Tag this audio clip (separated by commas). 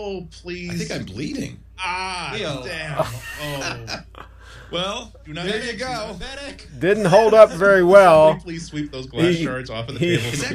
Speech